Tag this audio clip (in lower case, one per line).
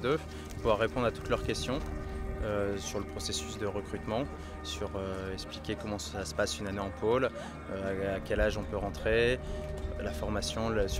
speech
music